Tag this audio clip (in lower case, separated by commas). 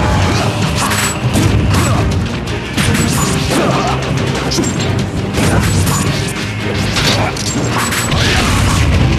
music, crash